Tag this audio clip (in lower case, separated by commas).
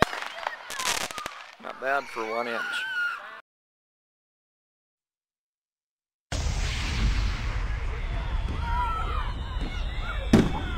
outside, urban or man-made, speech